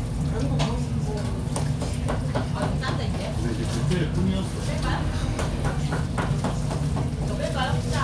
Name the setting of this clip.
crowded indoor space